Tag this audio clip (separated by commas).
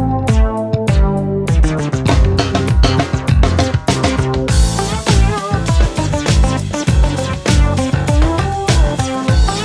playing synthesizer